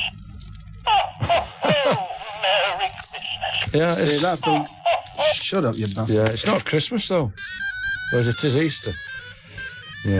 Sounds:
music, speech

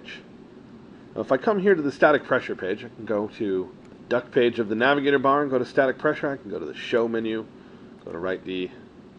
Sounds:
speech

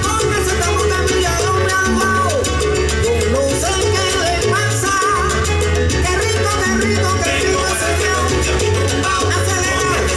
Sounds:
music, music of latin america

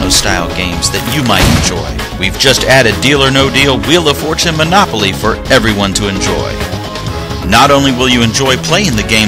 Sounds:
music, speech

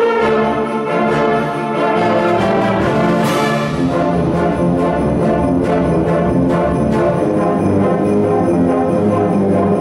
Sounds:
music

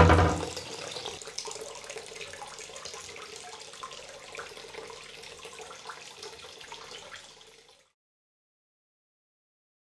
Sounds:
water, water tap, bathtub (filling or washing)

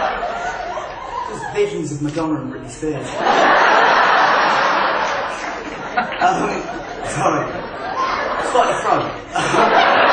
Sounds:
narration, male speech, speech

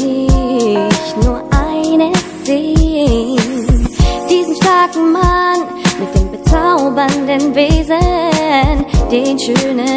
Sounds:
music, rhythm and blues, hip hop music

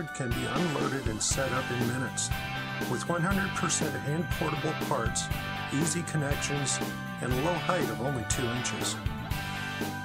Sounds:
speech, music

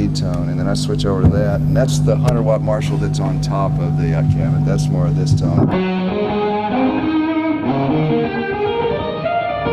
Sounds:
guitar, speech, musical instrument, plucked string instrument, music, effects unit, electric guitar, tapping (guitar technique)

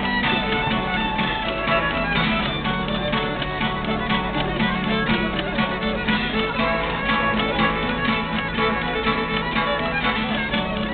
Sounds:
music, musical instrument

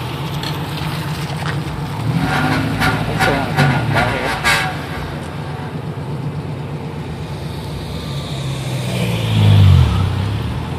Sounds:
car, speech, motor vehicle (road), vehicle

